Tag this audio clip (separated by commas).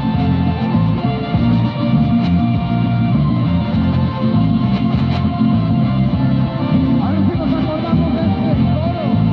Radio, Music